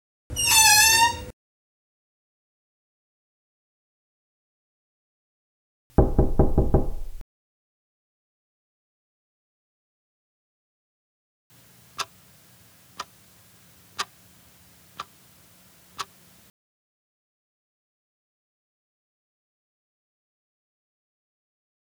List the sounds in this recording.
door